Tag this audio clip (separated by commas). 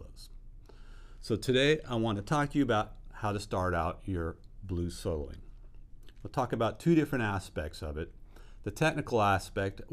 Speech